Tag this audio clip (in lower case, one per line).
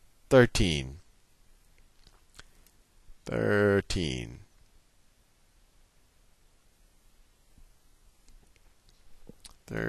speech